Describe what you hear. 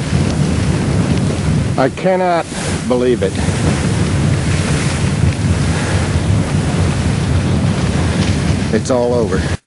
A man speaks and wind blows